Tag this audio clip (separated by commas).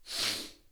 Respiratory sounds